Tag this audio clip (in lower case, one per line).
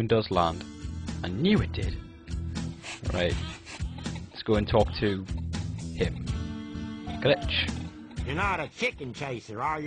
music
speech